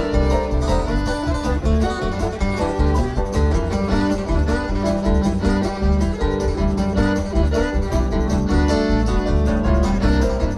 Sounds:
bluegrass
music

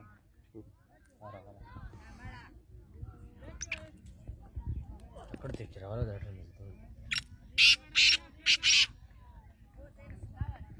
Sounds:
francolin calling

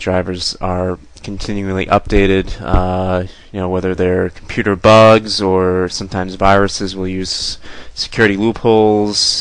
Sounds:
speech

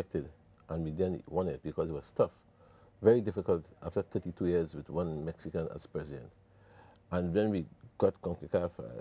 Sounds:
speech

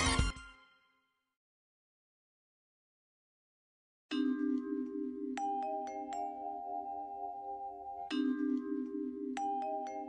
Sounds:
music

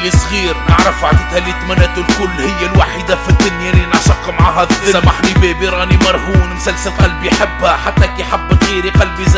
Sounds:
music

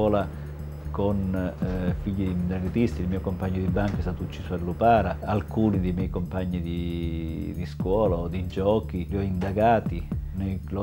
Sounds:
music
speech

